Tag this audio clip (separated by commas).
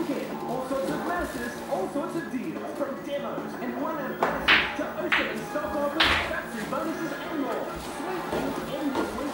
Speech, Music